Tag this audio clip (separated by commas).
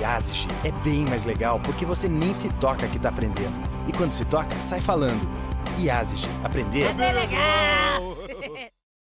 Music, Speech